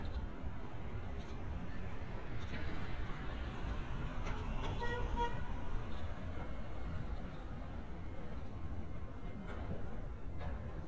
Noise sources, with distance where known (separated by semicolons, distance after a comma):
car horn, near